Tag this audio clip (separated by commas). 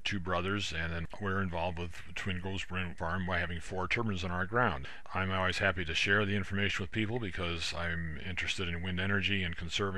Speech